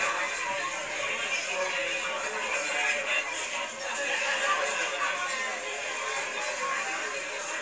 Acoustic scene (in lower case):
crowded indoor space